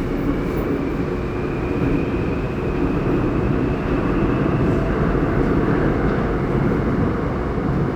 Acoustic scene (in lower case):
subway train